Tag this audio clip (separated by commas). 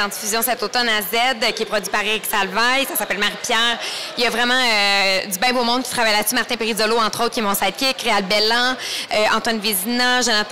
Speech